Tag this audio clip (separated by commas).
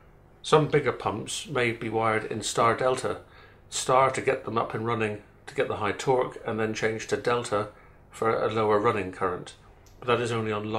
Speech